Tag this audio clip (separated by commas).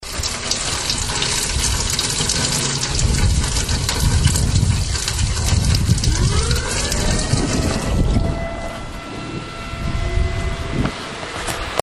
Rain, Water